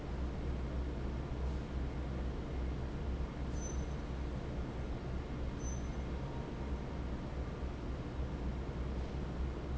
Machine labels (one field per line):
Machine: fan